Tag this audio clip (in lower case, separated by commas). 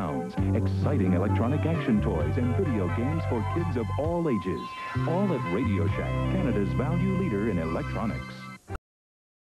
music, speech